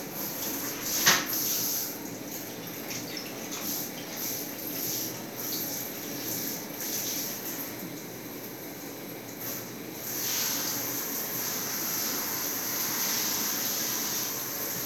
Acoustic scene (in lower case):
restroom